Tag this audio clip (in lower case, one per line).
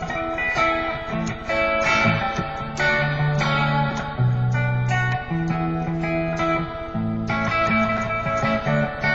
inside a small room
music
guitar
plucked string instrument
musical instrument